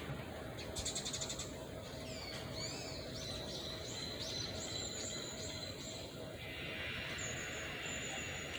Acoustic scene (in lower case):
residential area